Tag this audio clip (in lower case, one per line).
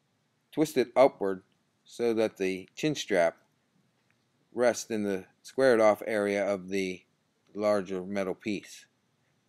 speech